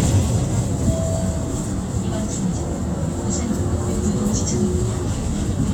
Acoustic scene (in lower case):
bus